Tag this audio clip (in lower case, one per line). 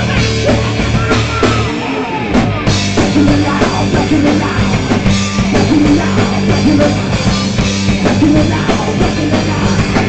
music